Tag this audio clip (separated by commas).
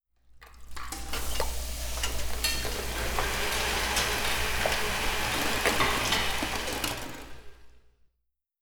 Frying (food), home sounds